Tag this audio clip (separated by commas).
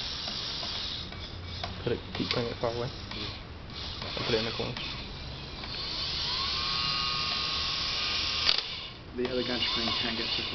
inside a small room, Speech